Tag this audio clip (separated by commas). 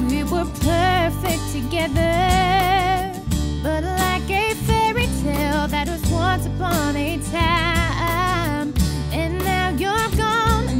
Music